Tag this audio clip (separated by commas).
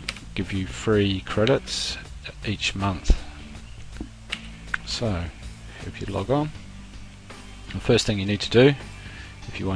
Music, Speech